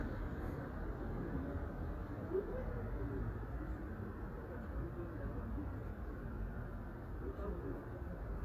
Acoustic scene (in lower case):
residential area